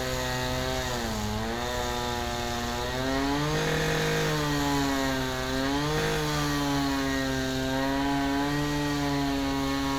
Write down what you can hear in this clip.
unidentified powered saw